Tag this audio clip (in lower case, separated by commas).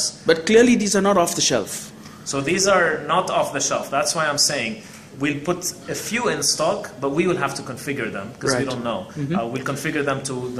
speech